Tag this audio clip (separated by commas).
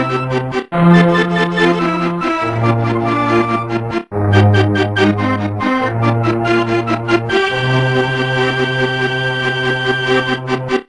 Music